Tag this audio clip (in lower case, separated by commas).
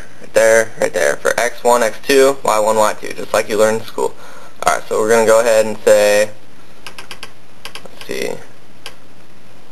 speech, inside a small room